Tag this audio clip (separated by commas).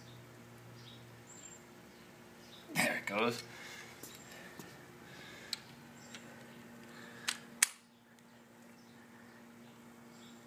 Speech